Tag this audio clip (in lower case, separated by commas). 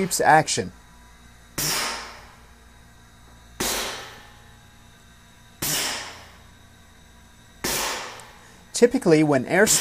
speech